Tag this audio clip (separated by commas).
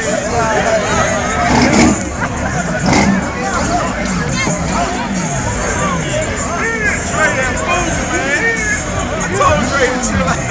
Speech, Vehicle, Motor vehicle (road), Car, Music